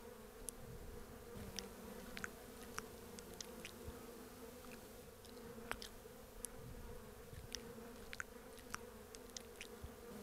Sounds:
fly

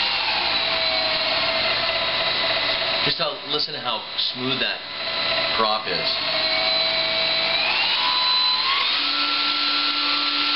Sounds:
Aircraft, Speech

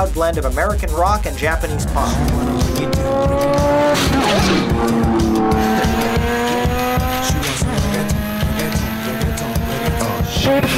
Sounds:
Tire squeal

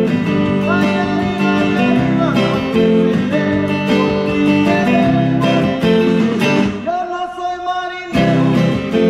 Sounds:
Music, Guitar, Plucked string instrument, Strum, Musical instrument

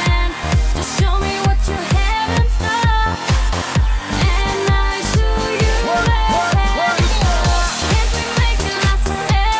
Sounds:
Music

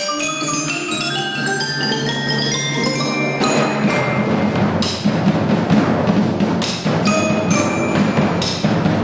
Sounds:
Percussion, Drum, Bass drum, Rimshot

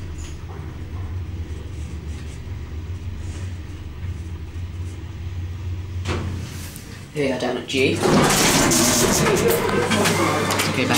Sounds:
Speech

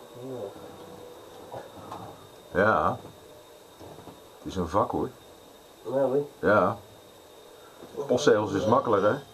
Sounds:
Speech

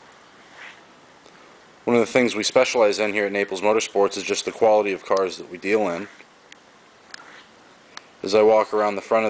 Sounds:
Speech

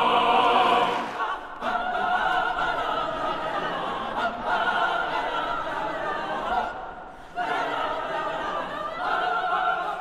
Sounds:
singing choir

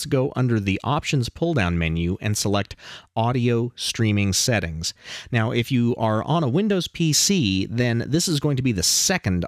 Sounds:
Speech

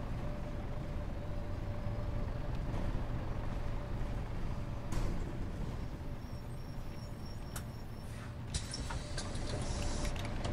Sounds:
Vehicle, driving buses, Bus

